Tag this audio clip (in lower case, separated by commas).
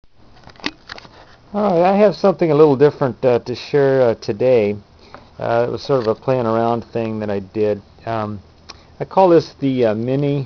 inside a small room, speech